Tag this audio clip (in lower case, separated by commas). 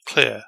speech, human voice, man speaking